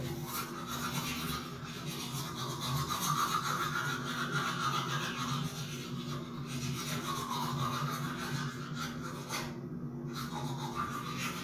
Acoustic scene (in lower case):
restroom